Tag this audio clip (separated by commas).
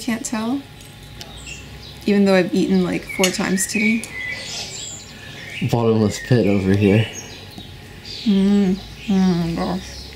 Speech, tweet